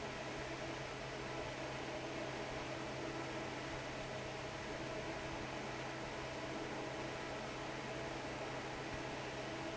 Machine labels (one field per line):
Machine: fan